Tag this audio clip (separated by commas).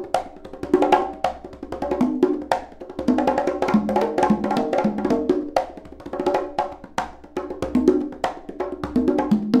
Drum, Percussion